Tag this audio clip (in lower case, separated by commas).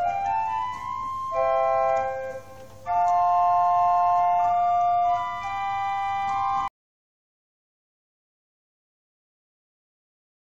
hammond organ, organ